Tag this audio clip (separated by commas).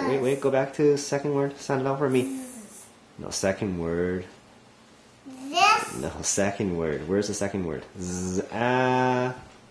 Speech